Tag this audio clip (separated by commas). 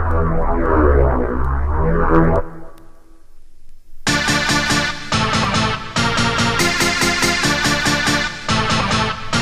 Music